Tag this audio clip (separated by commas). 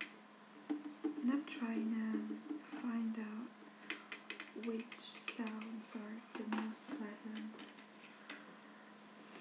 Speech